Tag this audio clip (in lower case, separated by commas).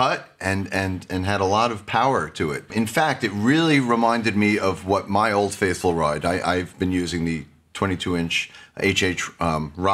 speech